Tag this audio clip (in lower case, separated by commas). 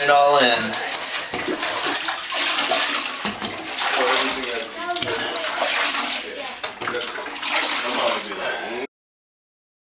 speech, inside a small room